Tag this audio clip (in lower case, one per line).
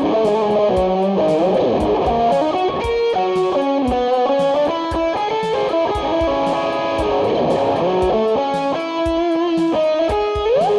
acoustic guitar
guitar
plucked string instrument
music
musical instrument